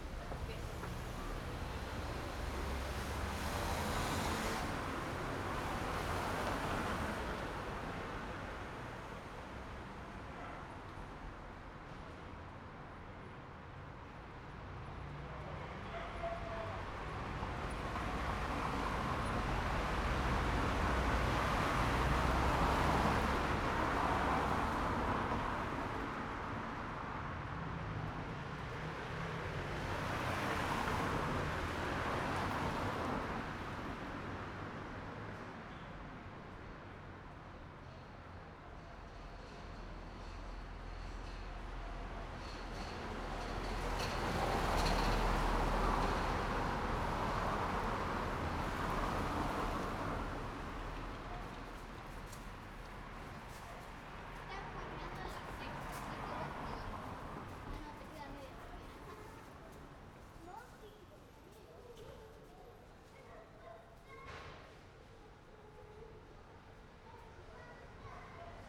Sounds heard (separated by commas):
car wheels rolling, car engine accelerating, people talking, car, car engine idling